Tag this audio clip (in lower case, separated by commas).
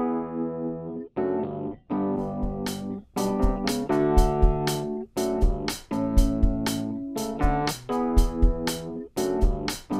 music